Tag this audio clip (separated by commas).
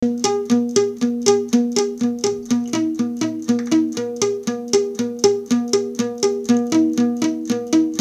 Musical instrument, Acoustic guitar, Music, Guitar, Plucked string instrument